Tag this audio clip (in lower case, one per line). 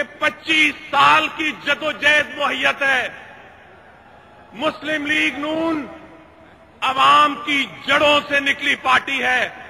man speaking
speech
narration